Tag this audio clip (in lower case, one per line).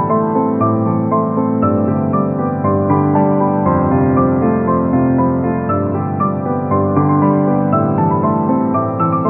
music